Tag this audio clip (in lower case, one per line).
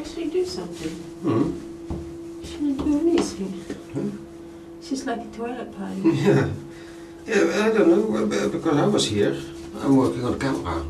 speech